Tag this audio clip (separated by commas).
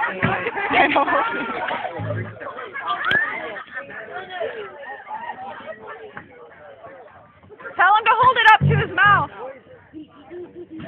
Speech